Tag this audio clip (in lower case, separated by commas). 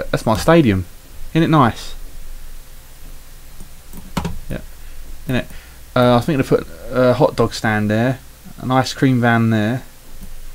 speech